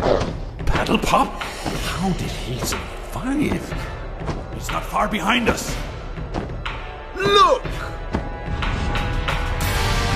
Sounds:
Speech, Music

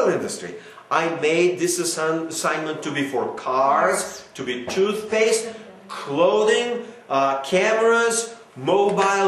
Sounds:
inside a small room, Speech

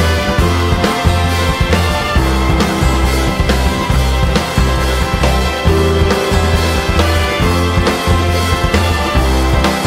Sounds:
Music

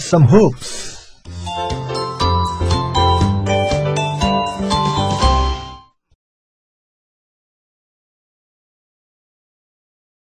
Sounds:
Music, Speech, Silence

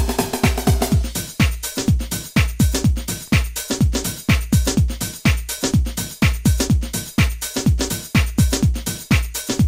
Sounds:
Music

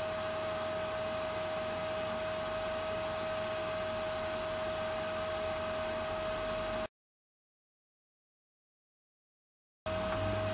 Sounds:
Radio

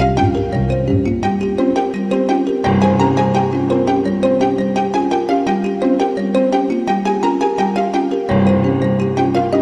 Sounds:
Music, Video game music, Soundtrack music

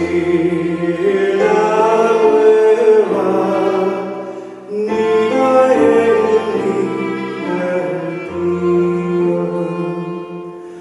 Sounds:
Violin, Music, Musical instrument

